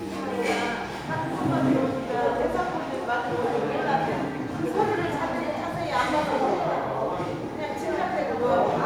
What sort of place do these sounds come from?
crowded indoor space